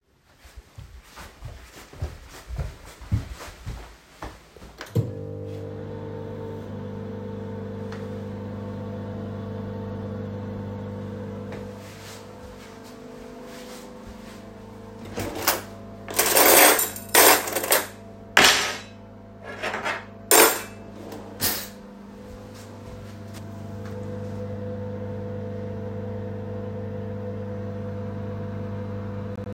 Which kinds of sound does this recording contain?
footsteps, microwave, cutlery and dishes